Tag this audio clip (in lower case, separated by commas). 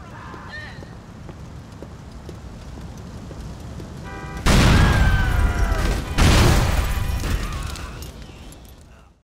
car, explosion